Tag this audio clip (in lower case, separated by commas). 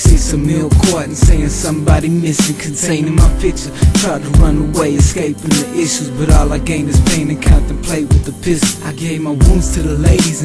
music